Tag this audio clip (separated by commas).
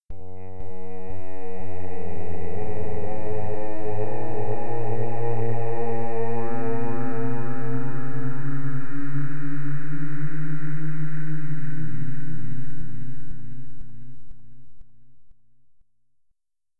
Human voice, Singing